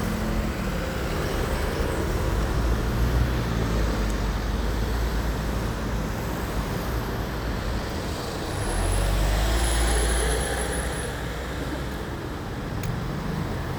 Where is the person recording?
on a street